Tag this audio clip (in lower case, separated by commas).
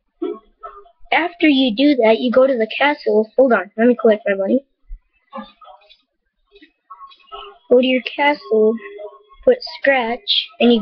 speech